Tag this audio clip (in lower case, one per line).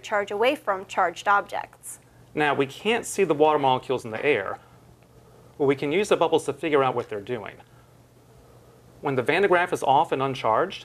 speech